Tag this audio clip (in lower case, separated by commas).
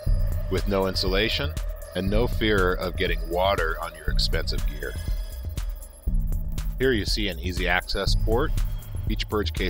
music, speech